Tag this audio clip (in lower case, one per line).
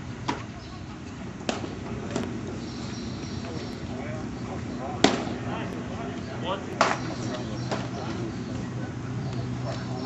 speech